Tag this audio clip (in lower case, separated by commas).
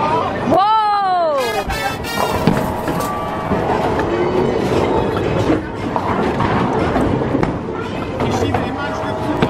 bowling impact